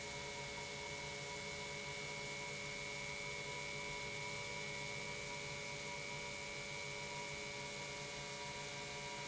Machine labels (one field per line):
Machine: pump